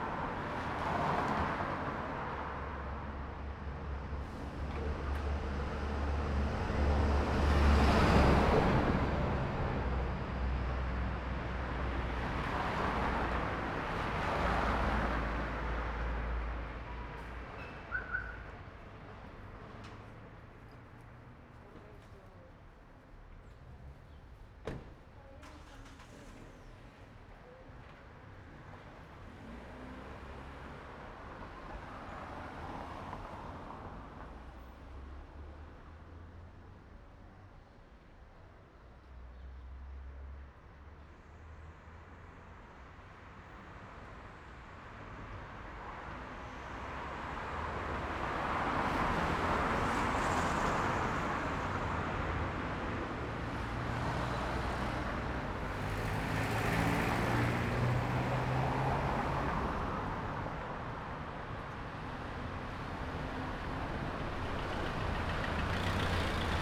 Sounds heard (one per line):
car wheels rolling
car engine accelerating
bus
people talking
truck
car engine idling
bus wheels rolling
truck wheels rolling
truck engine accelerating
car
truck compressor